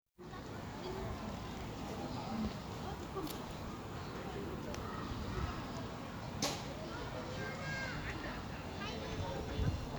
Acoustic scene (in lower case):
residential area